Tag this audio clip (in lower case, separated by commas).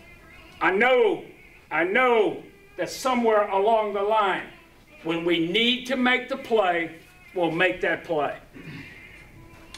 speech, music